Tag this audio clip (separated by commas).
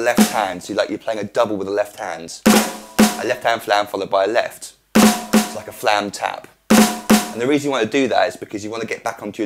Music, Speech